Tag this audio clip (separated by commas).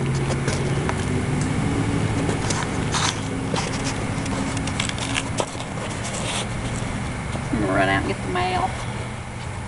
Vehicle, Speech